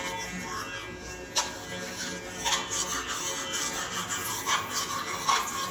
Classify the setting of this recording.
restroom